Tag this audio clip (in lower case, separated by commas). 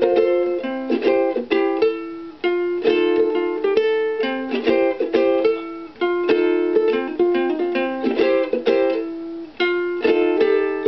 music, inside a small room, ukulele